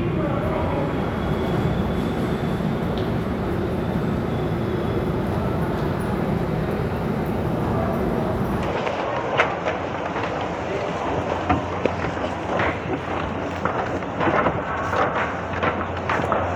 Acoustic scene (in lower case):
subway station